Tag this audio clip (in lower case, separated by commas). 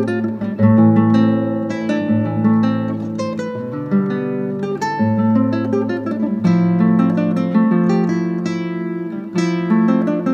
strum, plucked string instrument, musical instrument, guitar, music, acoustic guitar